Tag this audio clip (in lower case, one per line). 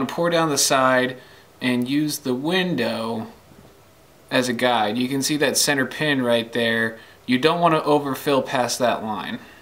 speech